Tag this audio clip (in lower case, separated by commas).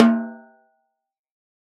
snare drum, musical instrument, percussion, drum, music